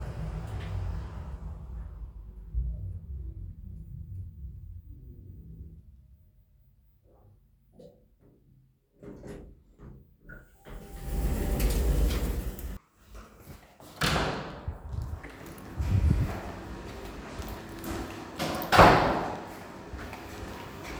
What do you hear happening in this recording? I was in the elevator, I got out and headed towards the laundry room